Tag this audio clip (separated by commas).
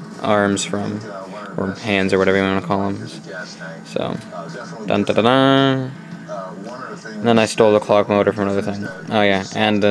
Speech